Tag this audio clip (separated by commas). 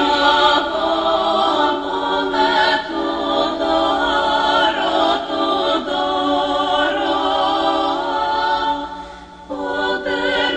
Lullaby, Music